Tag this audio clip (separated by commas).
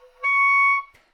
Musical instrument, Music, Wind instrument